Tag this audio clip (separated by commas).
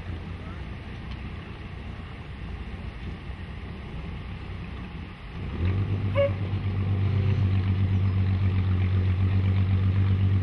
Speech